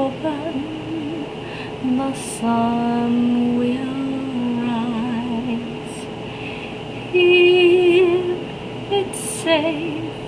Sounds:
Lullaby

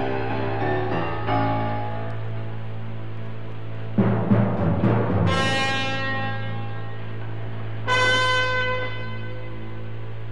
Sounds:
Timpani, Music

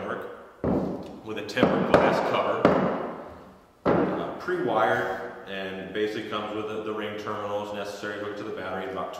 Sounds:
Speech

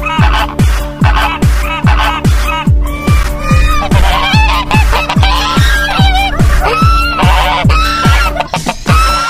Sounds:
Honk, Music

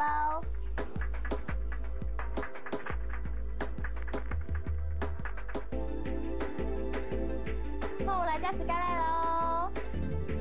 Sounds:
Music, Speech

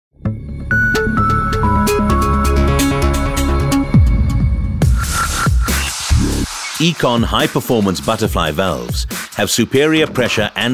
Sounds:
Dubstep, Music, Speech

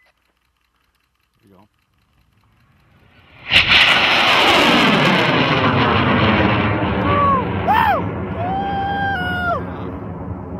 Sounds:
missile launch

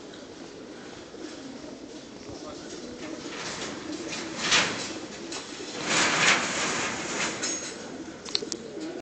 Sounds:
Speech

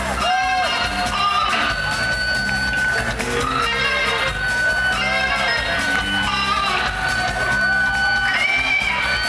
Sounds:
Music, Plucked string instrument, Electric guitar, Strum, Musical instrument, Guitar

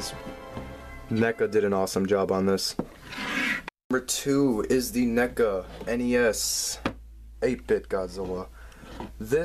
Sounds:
inside a small room, Speech

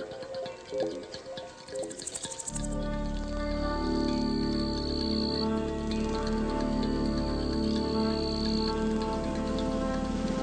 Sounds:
Music, Insect

